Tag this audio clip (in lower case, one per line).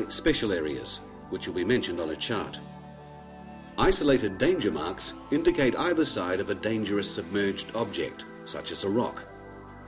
speech
music